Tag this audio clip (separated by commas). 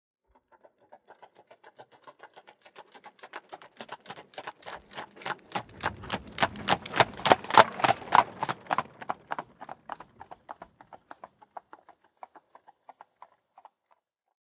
Animal, livestock